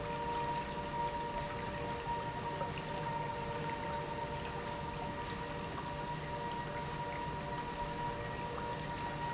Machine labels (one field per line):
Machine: pump